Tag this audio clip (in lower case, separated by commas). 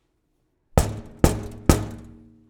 knock, domestic sounds, wood, door